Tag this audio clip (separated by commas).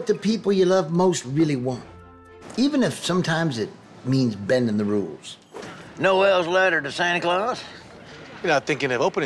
Music, Speech